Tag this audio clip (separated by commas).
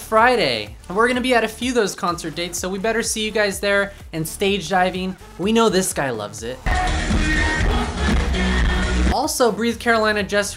Music, Speech